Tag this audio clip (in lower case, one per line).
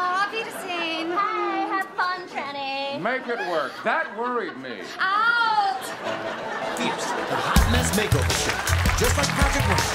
laughter